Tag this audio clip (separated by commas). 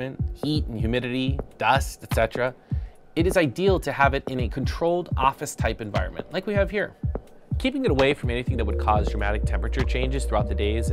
Speech, Music